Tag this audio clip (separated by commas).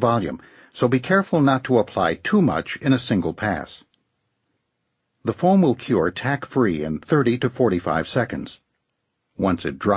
Speech